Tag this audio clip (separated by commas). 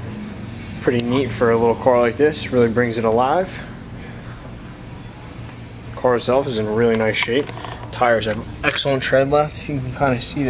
Music, Speech